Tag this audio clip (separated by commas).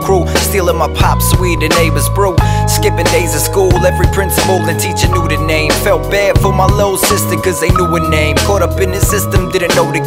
Music